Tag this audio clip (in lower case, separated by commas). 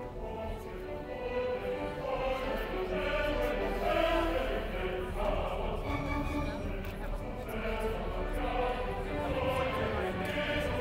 music, speech